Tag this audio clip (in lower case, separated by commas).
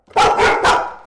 dog, animal, pets, bark